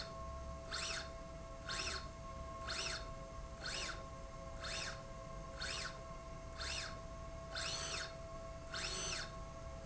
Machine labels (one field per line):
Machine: slide rail